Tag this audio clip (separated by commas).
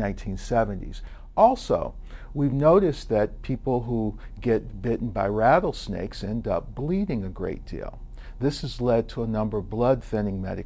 Speech